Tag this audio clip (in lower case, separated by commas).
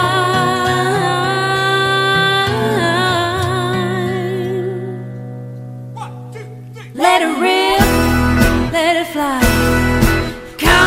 speech, exciting music, music